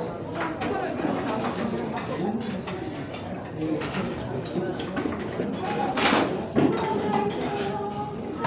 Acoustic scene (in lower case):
restaurant